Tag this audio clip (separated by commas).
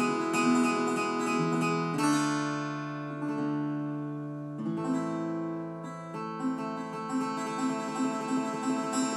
Guitar, Acoustic guitar, Plucked string instrument, Music, Musical instrument